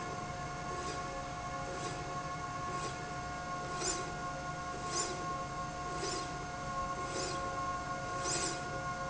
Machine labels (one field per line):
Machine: slide rail